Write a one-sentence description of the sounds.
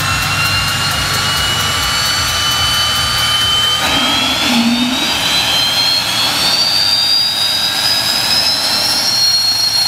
An engine whirs loudly with ticking in the background